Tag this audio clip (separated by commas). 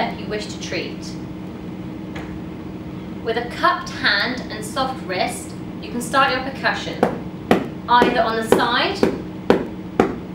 Speech